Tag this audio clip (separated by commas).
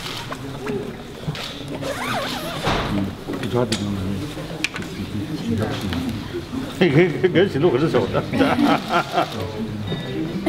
Speech